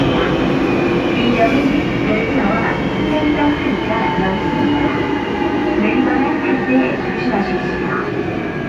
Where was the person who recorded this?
on a subway train